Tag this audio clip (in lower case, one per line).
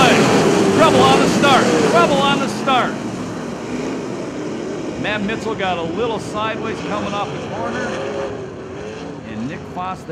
car passing by